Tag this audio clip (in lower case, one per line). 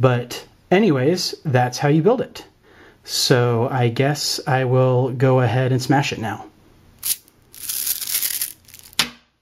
inside a small room
speech